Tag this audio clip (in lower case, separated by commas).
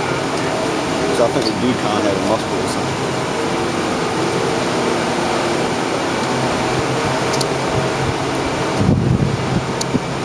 vehicle, train, speech